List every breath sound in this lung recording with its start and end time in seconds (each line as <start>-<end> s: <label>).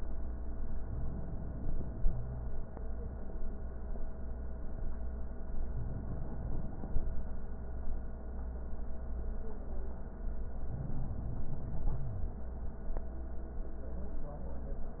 0.84-2.16 s: inhalation
2.16-2.46 s: wheeze
5.73-7.08 s: inhalation
10.73-12.07 s: inhalation
11.93-12.37 s: wheeze